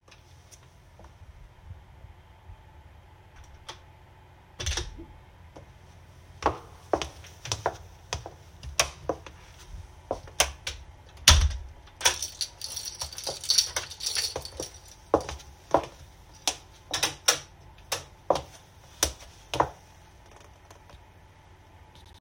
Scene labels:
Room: hallway; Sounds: door (more than once), footsteps, keys, light switch

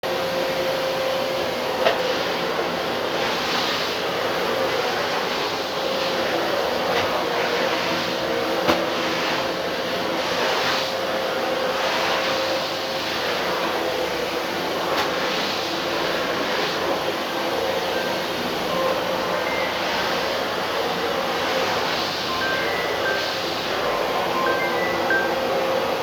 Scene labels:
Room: bedroom; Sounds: vacuum cleaner, phone ringing

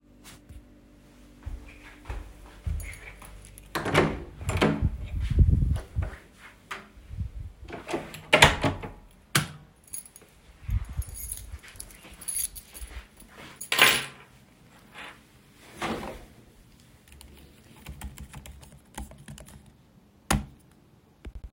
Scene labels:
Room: hallway, office; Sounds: footsteps, keys, door (more than once), light switch, keyboard typing

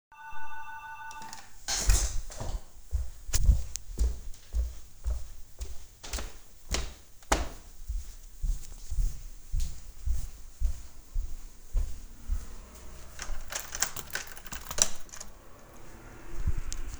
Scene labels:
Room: living room, hallway; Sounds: bell ringing, keyboard typing, footsteps, door

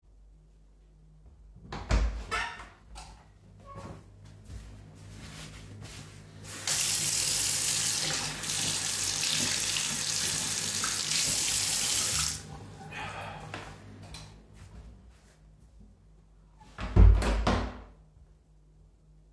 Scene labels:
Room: bathroom; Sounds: door (more than once), light switch, running water

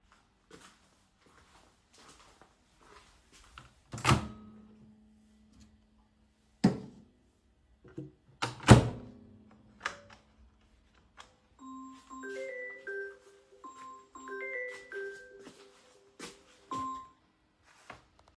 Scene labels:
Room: kitchen; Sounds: footsteps, microwave, phone ringing

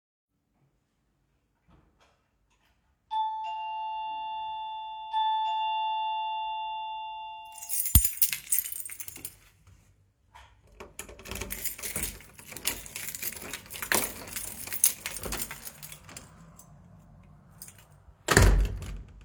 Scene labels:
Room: hallway; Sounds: footsteps, bell ringing, keys, door (more than once)

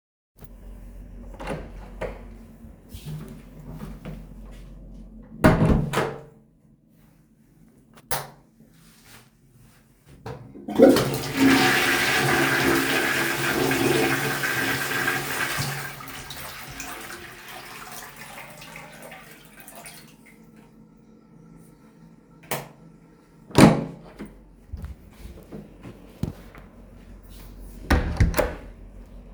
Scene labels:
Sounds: door (more than once), footsteps, light switch, toilet flushing

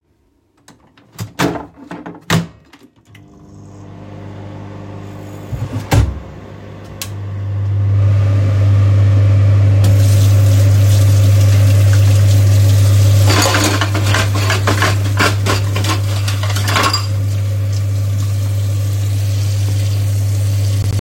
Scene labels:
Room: kitchen; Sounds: microwave, running water, cutlery and dishes

